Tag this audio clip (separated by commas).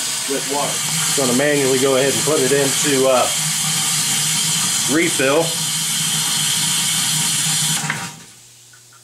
Water